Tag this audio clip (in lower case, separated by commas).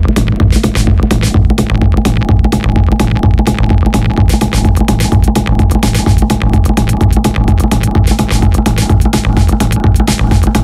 music